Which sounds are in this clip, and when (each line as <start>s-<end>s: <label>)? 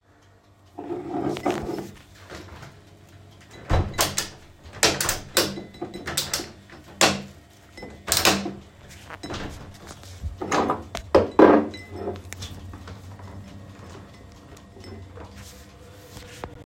0.7s-2.2s: cutlery and dishes
3.6s-6.0s: window
5.8s-6.6s: cutlery and dishes
6.1s-7.5s: window
7.7s-8.8s: window
7.8s-12.8s: cutlery and dishes